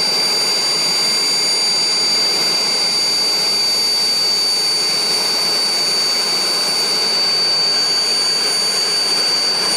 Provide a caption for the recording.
A helicopter speeding up it's engine